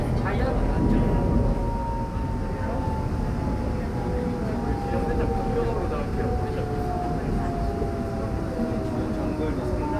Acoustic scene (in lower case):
subway train